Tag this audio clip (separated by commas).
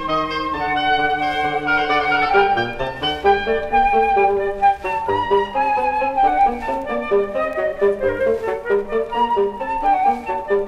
Music, Flute